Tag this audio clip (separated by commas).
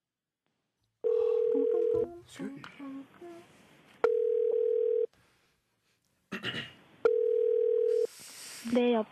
Dial tone, Speech